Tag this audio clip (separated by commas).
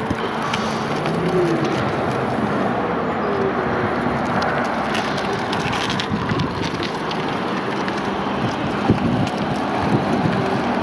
Vehicle, outside, urban or man-made